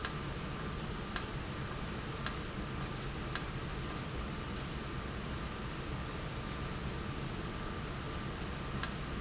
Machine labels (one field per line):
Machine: valve